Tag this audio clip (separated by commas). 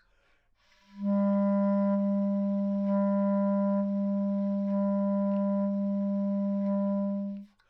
Musical instrument, Wind instrument, Music